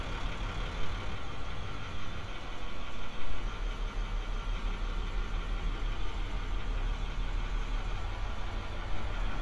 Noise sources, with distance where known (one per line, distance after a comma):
large-sounding engine, near